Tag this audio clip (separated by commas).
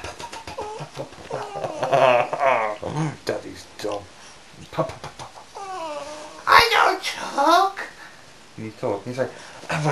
Yip, Speech